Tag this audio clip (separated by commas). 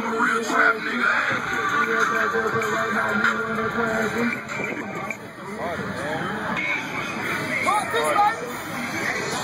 Music, Speech